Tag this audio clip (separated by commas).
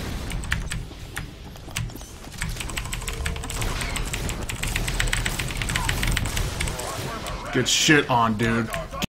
Speech